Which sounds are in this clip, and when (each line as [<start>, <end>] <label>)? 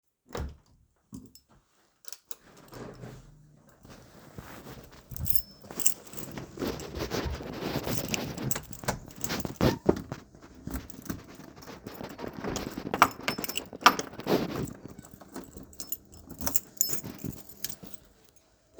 [0.24, 0.62] door
[1.02, 3.39] keys
[4.95, 10.30] keys
[8.58, 9.09] door
[10.60, 18.14] door
[11.76, 18.14] keys